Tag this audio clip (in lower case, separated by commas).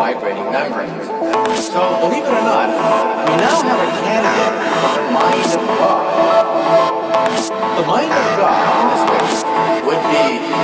speech, music